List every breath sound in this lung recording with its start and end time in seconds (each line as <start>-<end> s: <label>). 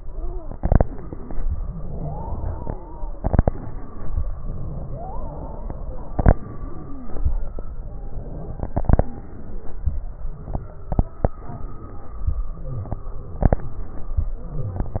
0.00-0.74 s: inhalation
0.00-0.74 s: wheeze
1.46-3.15 s: exhalation
2.24-2.98 s: wheeze
3.32-4.18 s: inhalation
3.43-4.14 s: wheeze
4.38-6.15 s: exhalation
4.70-5.78 s: wheeze
6.38-7.26 s: inhalation
6.62-7.16 s: wheeze
7.34-8.79 s: exhalation
9.06-9.89 s: inhalation
9.93-10.95 s: exhalation
11.35-12.37 s: inhalation
12.37-13.39 s: exhalation
13.61-14.28 s: inhalation
14.29-15.00 s: exhalation
14.45-15.00 s: wheeze